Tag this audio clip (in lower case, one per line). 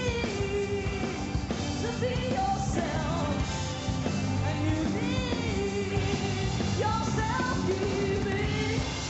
music